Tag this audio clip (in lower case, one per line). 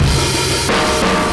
music
musical instrument
percussion
drum kit